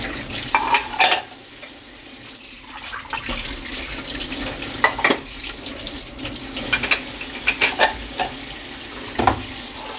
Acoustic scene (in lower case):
kitchen